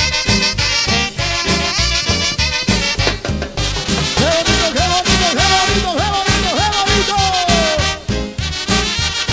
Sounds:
music

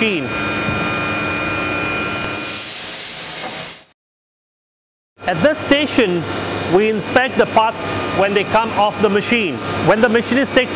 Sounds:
speech
inside a large room or hall

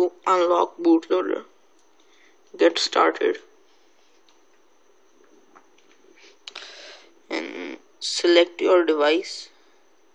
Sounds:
speech

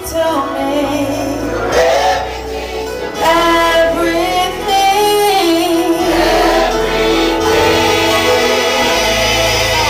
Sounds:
music
gospel music
female singing
singing
choir

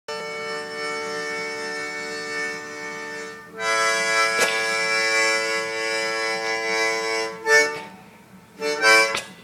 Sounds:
playing harmonica

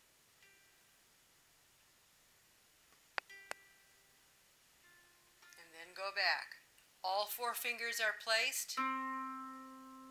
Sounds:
harp
pizzicato

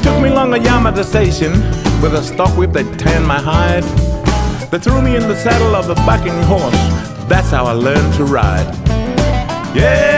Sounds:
music

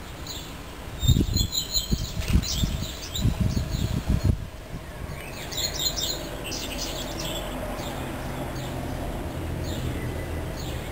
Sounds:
bird

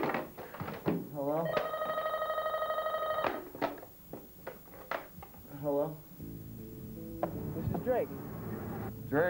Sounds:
music
inside a small room
speech

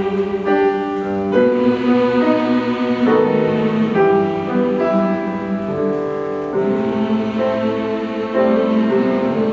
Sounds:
music
choir

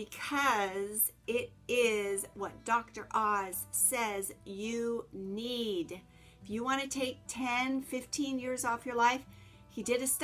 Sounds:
speech

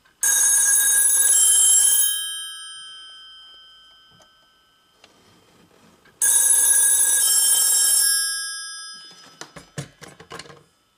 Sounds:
telephone bell ringing

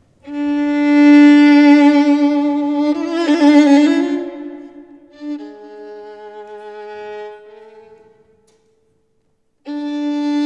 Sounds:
violin
musical instrument
music

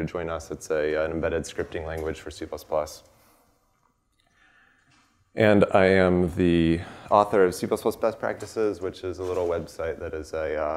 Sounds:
speech

